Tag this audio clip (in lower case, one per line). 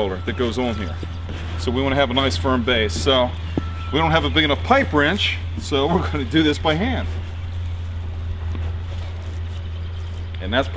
speech